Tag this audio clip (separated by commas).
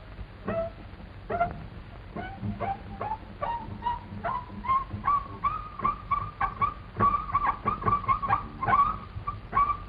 Music